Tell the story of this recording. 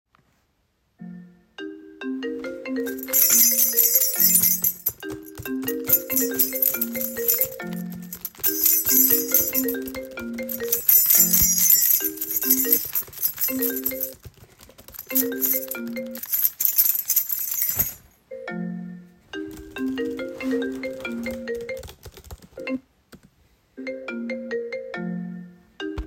My friend called me, while i was looking for my keys, writing him back on my keyboard simultaneously.